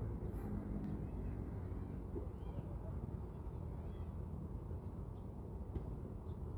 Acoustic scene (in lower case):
residential area